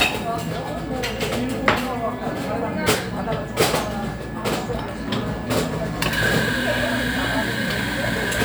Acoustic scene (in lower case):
cafe